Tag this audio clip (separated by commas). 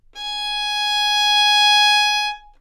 Music, Musical instrument, Bowed string instrument